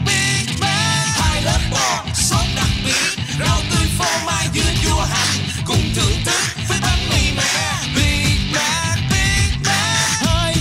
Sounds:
Music

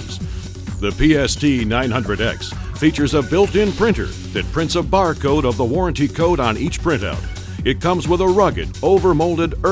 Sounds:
Speech, Music

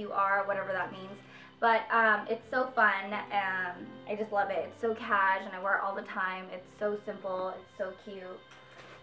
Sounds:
Speech, inside a small room, Music

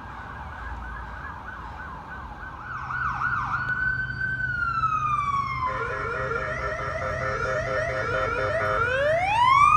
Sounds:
ambulance siren

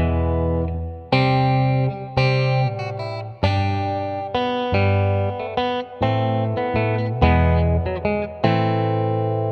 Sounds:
Acoustic guitar, Strum, Guitar, Music, Plucked string instrument, Musical instrument

